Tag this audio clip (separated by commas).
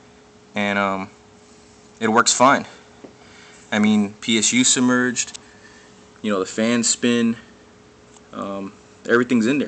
Speech